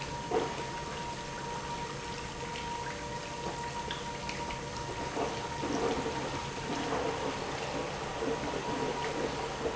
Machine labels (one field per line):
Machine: pump